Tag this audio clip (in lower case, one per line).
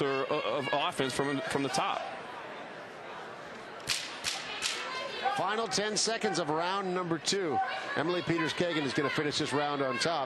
speech